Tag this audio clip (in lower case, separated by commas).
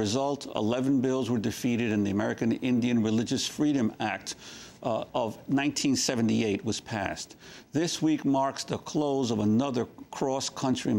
speech